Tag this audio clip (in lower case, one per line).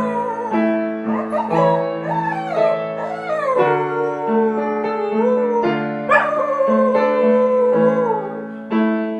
music
bow-wow
whimper (dog)
yip